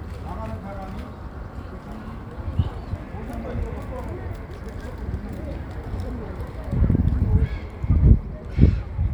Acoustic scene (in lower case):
park